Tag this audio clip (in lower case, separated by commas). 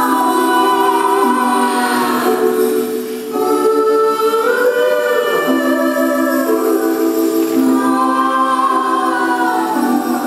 choir, singing, music